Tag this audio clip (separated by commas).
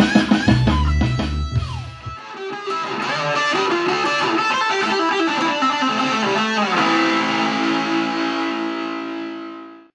Plucked string instrument, Strum, Musical instrument, Guitar, Music